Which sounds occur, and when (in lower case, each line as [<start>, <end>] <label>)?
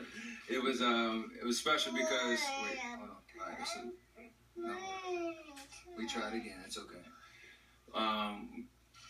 [0.00, 9.05] television
[0.37, 3.06] man speaking
[1.61, 7.06] conversation
[1.61, 2.94] child speech
[3.24, 3.92] man speaking
[3.29, 4.01] child speech
[4.47, 6.61] man speaking
[4.51, 6.44] child speech
[7.76, 8.59] man speaking